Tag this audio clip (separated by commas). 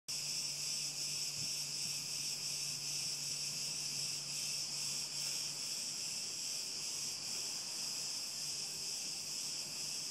Cricket, Insect